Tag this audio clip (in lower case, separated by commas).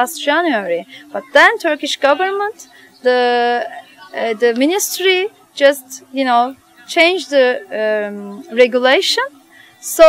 speech